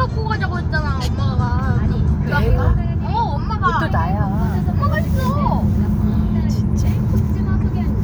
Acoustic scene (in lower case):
car